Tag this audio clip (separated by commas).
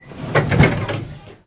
Vehicle, Rail transport, metro